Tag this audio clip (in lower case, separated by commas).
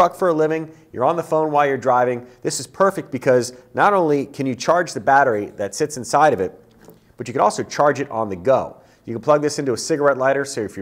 speech